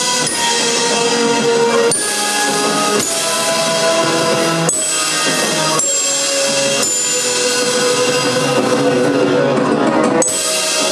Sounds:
Music

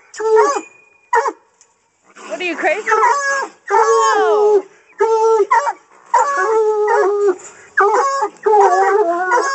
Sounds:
dog baying

